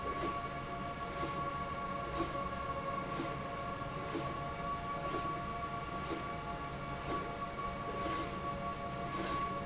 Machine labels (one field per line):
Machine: slide rail